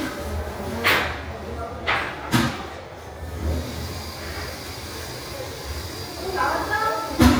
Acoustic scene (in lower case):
restroom